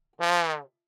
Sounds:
Music, Musical instrument, Brass instrument

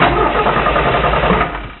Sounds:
Engine starting, Car, Vehicle, Engine, Motor vehicle (road)

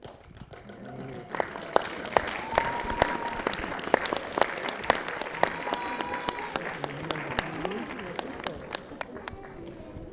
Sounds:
Applause, Human group actions

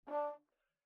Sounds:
Musical instrument, Brass instrument, Music

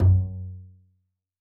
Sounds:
Music, Musical instrument, Bowed string instrument

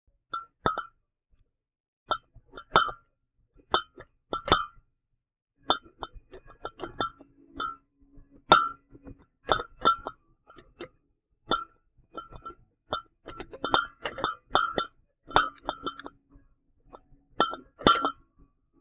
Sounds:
Chink, Glass

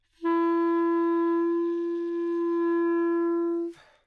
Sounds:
Musical instrument, Music, Wind instrument

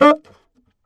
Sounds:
Musical instrument, Music, Wind instrument

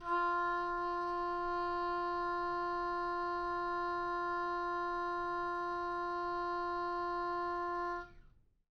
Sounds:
Musical instrument, Music, woodwind instrument

